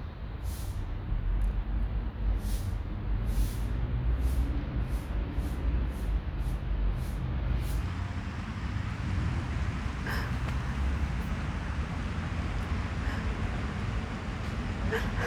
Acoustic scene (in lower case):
residential area